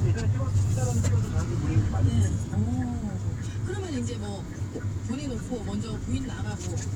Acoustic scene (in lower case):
car